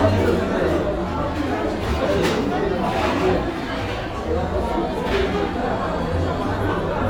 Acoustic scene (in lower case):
cafe